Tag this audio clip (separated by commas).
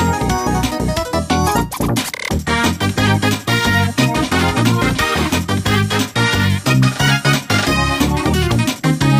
Music